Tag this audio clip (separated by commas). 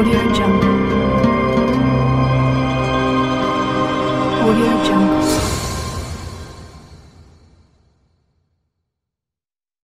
Music, Speech